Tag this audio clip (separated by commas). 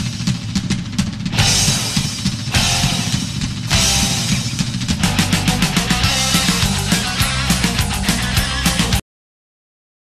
Music